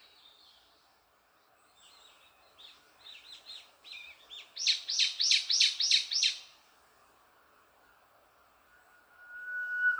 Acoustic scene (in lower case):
park